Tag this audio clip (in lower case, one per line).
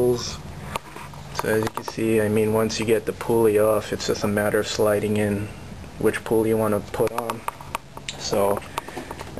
speech